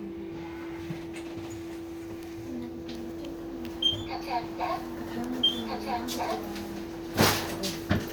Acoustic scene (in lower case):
bus